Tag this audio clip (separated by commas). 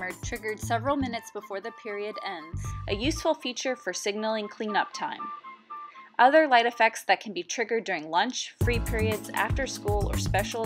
Music, Speech